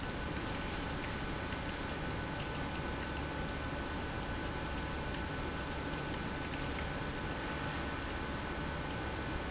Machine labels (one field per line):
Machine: pump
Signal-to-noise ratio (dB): -6 dB